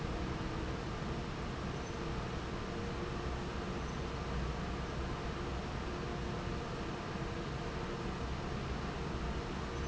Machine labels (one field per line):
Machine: fan